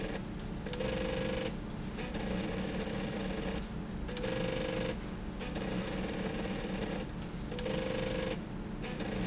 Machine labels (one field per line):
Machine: slide rail